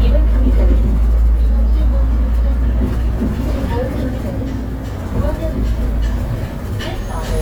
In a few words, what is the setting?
bus